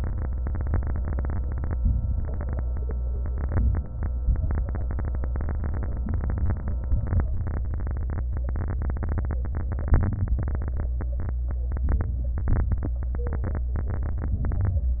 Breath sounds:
1.74-2.65 s: inhalation
2.65-3.38 s: exhalation
3.43-4.35 s: inhalation
4.36-5.31 s: exhalation
6.00-6.77 s: inhalation
6.86-7.63 s: exhalation
9.96-10.73 s: inhalation
10.78-11.55 s: exhalation
11.83-12.40 s: inhalation
12.38-12.95 s: exhalation
14.47-15.00 s: inhalation

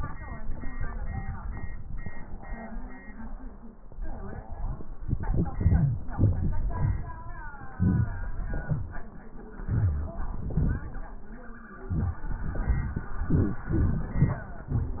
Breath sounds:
5.55-6.02 s: wheeze
7.81-8.29 s: wheeze
8.64-8.98 s: wheeze
9.68-10.18 s: wheeze

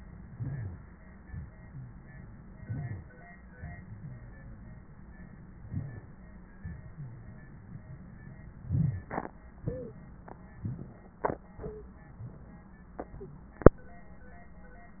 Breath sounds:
0.34-0.88 s: inhalation
2.62-3.15 s: inhalation
5.71-6.24 s: inhalation
8.61-9.15 s: inhalation

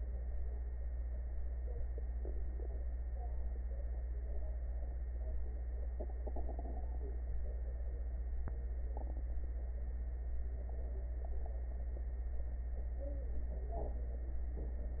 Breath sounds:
No breath sounds were labelled in this clip.

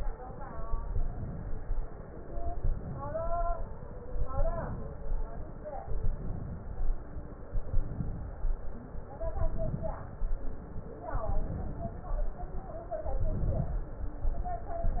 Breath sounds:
0.86-1.71 s: inhalation
2.54-3.39 s: inhalation
4.26-5.11 s: inhalation
5.87-6.84 s: inhalation
7.56-8.42 s: inhalation
9.36-10.23 s: inhalation
11.15-12.09 s: inhalation
13.21-13.82 s: inhalation

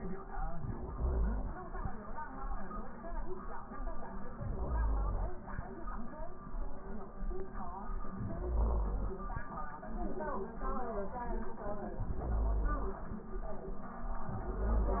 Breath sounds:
0.38-1.69 s: inhalation
4.39-5.48 s: inhalation
8.19-9.29 s: inhalation
11.99-13.09 s: inhalation
14.31-15.00 s: inhalation

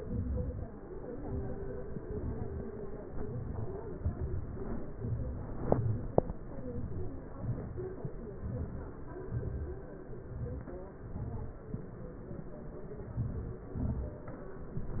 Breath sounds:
1.24-1.87 s: inhalation
2.11-2.59 s: exhalation
3.11-3.67 s: inhalation
3.95-4.40 s: exhalation
4.99-5.58 s: inhalation
5.70-6.20 s: exhalation
6.75-7.28 s: inhalation
7.48-7.90 s: exhalation
8.45-8.97 s: inhalation
9.30-9.70 s: exhalation
10.40-10.85 s: inhalation
11.05-11.50 s: exhalation
13.15-13.65 s: inhalation
13.73-14.24 s: exhalation

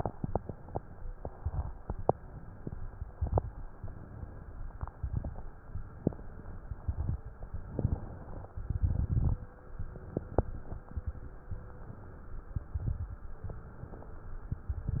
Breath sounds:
7.73-8.52 s: inhalation
8.59-9.38 s: exhalation
8.59-9.38 s: crackles

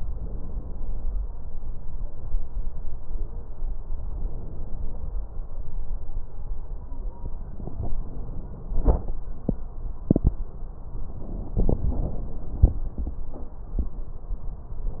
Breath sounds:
0.08-1.24 s: inhalation
3.91-5.29 s: inhalation

